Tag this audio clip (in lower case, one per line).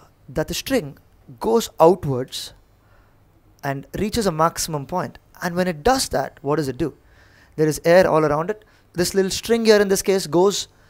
speech